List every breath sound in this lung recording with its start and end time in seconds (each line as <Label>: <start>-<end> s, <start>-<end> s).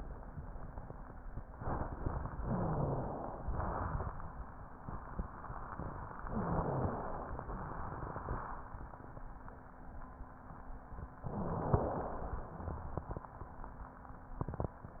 Inhalation: 2.43-3.42 s, 6.24-7.40 s, 11.23-12.39 s
Exhalation: 3.42-4.29 s, 7.46-8.45 s
Wheeze: 2.37-3.00 s, 6.30-6.93 s, 11.31-11.94 s